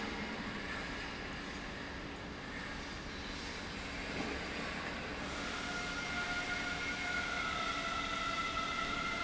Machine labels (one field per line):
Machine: pump